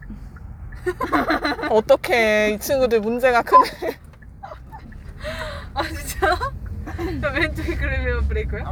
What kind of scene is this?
car